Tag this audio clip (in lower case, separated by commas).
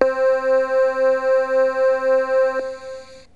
keyboard (musical), music, musical instrument